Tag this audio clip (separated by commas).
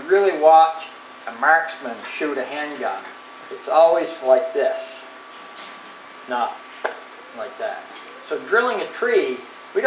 Speech